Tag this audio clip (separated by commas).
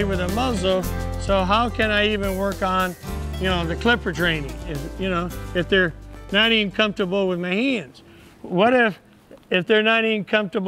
Speech, Music